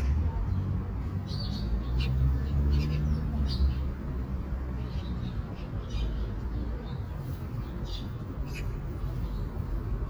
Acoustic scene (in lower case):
park